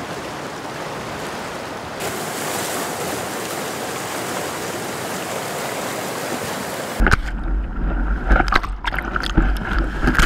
Water splashes and gurgles